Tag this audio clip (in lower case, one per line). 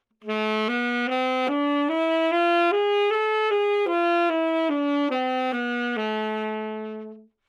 music
woodwind instrument
musical instrument